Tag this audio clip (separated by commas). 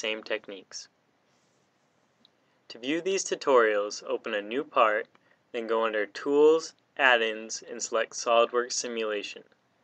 Speech